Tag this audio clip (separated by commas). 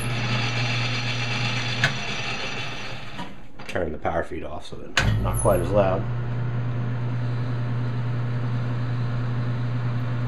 Tools, Speech